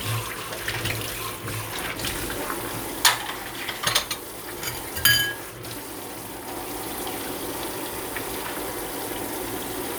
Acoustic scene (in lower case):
kitchen